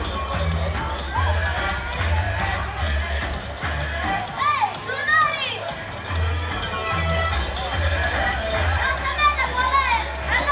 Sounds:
speech, music

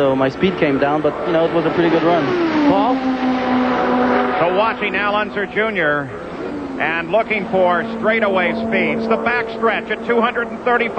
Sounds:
speech

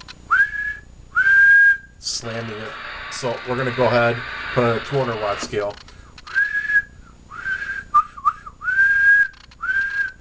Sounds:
whistling

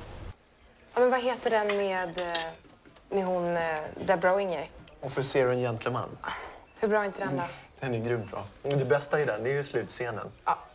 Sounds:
speech

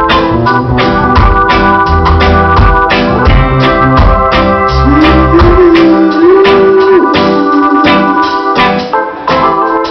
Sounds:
music, inside a large room or hall

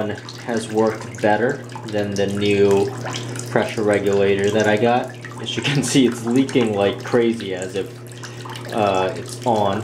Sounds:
faucet, bathtub (filling or washing), sink (filling or washing), water

